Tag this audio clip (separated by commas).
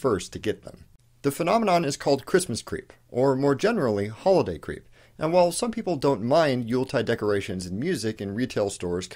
Speech